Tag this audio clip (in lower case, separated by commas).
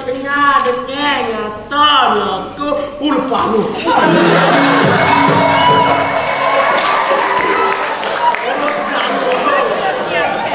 speech, music